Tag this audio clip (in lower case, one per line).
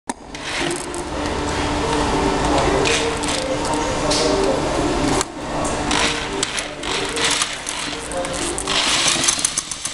music